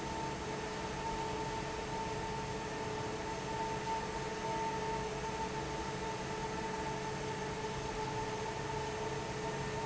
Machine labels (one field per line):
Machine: fan